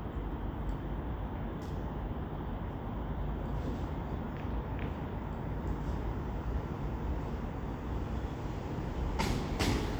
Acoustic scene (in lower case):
residential area